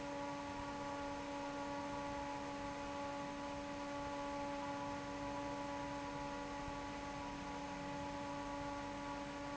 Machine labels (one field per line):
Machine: fan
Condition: normal